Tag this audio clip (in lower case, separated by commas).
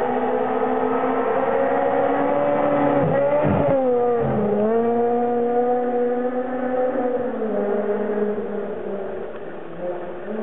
auto racing, car, vehicle, tire squeal